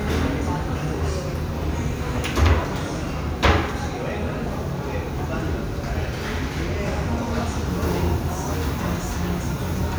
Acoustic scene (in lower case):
restaurant